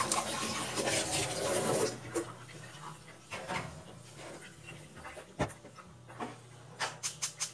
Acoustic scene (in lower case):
kitchen